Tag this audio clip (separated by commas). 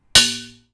home sounds, dishes, pots and pans